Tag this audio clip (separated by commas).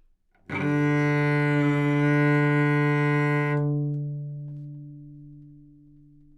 Music, Bowed string instrument, Musical instrument